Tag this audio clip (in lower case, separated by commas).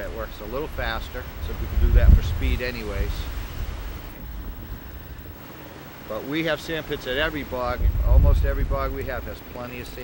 speech, vehicle